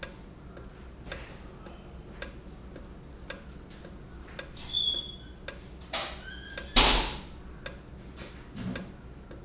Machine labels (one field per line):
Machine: valve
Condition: normal